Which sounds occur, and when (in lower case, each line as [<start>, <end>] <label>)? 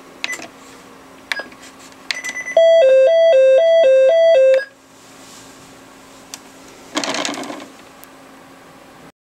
[0.00, 9.13] mechanisms
[0.25, 0.42] bleep
[0.26, 0.49] generic impact sounds
[1.33, 1.46] generic impact sounds
[1.33, 1.48] bleep
[2.09, 2.36] generic impact sounds
[2.10, 4.74] bleep
[4.53, 4.61] generic impact sounds
[6.32, 6.40] tick
[6.63, 6.93] breathing
[6.95, 7.76] generic impact sounds
[8.02, 8.10] tick